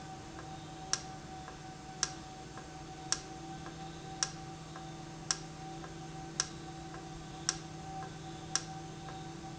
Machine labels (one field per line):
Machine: valve